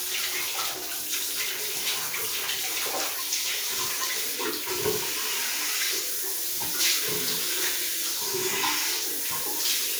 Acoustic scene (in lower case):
restroom